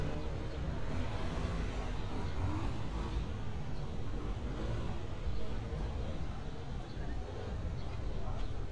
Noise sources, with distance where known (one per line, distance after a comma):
medium-sounding engine